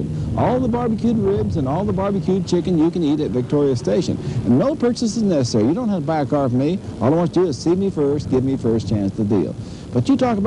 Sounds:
Speech

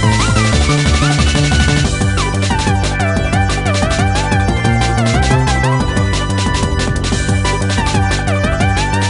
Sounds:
Rhythm and blues, Music

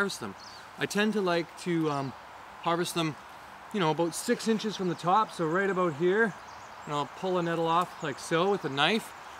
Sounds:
Speech

